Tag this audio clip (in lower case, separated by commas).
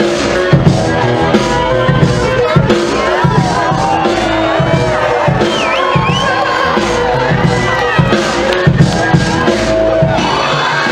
outside, urban or man-made, music